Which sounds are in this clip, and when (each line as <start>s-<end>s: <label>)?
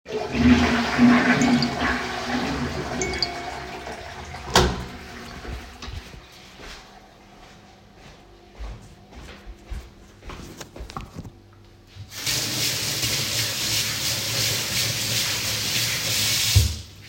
0.0s-7.1s: toilet flushing
1.4s-2.1s: phone ringing
2.9s-3.6s: phone ringing
6.4s-11.7s: footsteps
11.8s-17.0s: running water